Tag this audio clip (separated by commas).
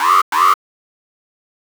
Alarm